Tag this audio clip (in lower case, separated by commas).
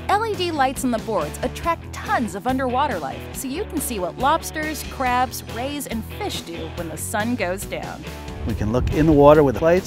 music, speech